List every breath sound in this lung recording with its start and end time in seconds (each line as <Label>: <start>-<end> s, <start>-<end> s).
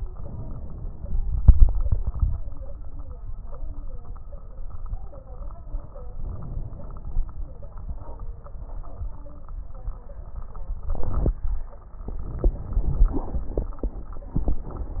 Inhalation: 0.07-1.21 s, 6.18-7.31 s
Exhalation: 1.23-2.49 s
Crackles: 0.07-1.21 s, 1.23-2.49 s, 6.18-7.31 s